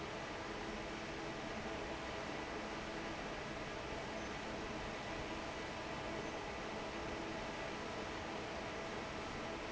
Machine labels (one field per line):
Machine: fan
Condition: normal